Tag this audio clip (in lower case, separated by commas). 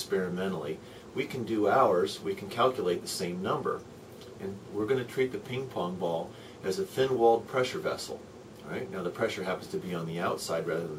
speech